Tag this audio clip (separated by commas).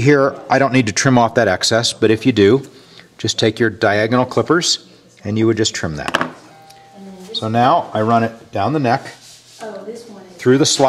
Speech